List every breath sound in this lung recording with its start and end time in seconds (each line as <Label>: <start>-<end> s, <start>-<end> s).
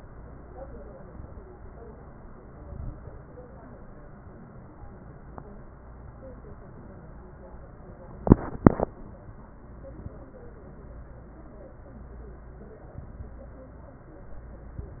Inhalation: 2.58-3.19 s
Exhalation: 0.95-1.55 s
Crackles: 0.95-1.55 s, 2.58-3.19 s